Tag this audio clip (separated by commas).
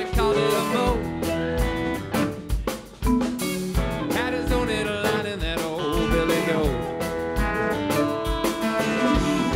Music